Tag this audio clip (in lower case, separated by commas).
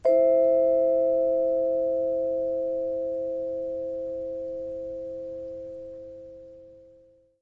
mallet percussion, musical instrument, music, percussion